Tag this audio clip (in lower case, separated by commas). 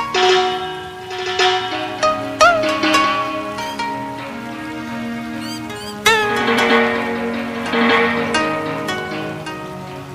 music, traditional music